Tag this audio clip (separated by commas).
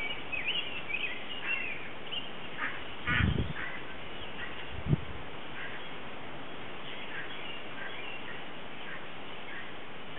Wind, Wind noise (microphone)